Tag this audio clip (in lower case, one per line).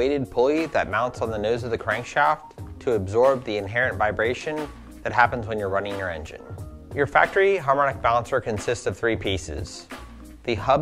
speech
music